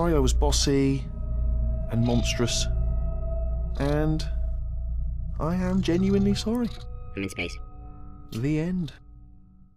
Man talking with music in background and robotic talking response